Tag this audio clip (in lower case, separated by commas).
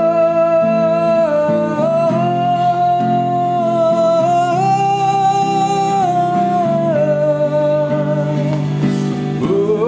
music, singing